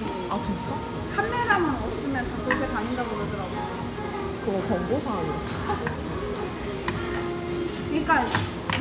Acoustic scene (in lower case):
restaurant